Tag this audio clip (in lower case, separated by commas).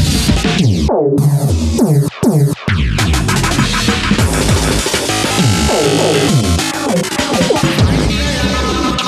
electronic music, music